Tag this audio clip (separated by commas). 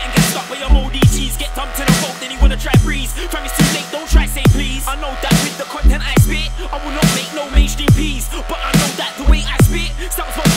Music